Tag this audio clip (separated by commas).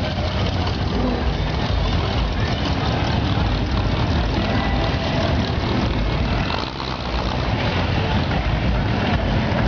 Car, Vehicle, Motor vehicle (road), Music